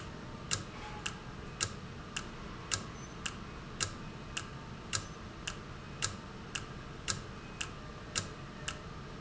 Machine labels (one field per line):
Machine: valve